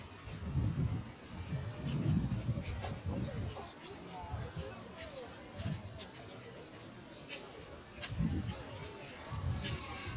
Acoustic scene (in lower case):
park